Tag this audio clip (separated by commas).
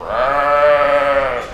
Animal, livestock